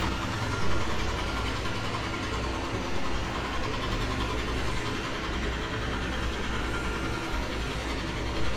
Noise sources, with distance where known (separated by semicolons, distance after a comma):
jackhammer, near